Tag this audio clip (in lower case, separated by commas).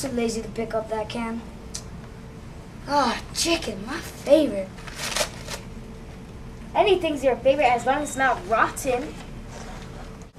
speech